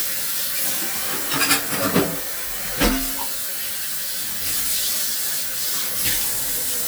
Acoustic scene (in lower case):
kitchen